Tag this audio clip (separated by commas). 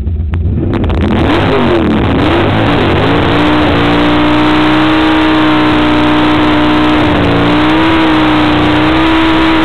Vehicle, Car